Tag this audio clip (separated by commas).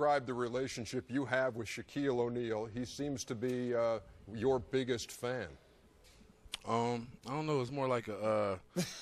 Speech